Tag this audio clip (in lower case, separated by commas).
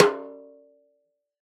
drum, musical instrument, snare drum, music, percussion